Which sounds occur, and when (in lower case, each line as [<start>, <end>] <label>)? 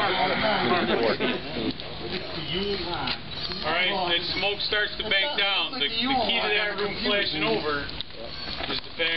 [0.00, 1.39] male speech
[0.00, 9.15] crackle
[0.00, 9.15] wind
[2.02, 2.19] generic impact sounds
[2.51, 3.20] male speech
[3.03, 3.20] generic impact sounds
[3.44, 3.56] generic impact sounds
[3.60, 7.94] male speech
[6.72, 6.87] generic impact sounds
[7.92, 8.11] generic impact sounds
[8.26, 8.84] male speech
[8.97, 9.15] male speech